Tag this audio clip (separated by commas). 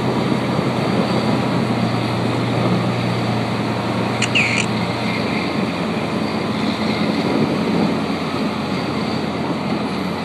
Truck